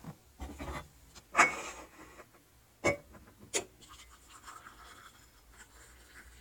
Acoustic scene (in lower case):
kitchen